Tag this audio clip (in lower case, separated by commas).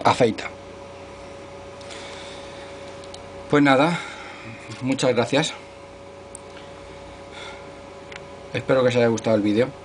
sharpen knife